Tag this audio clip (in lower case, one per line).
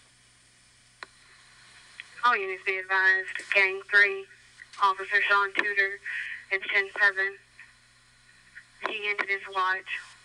police radio chatter